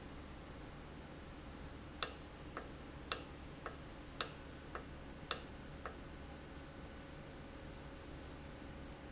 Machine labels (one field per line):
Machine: valve